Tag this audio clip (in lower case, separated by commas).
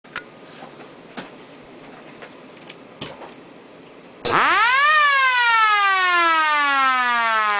siren